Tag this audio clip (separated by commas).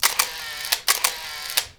Mechanisms, Camera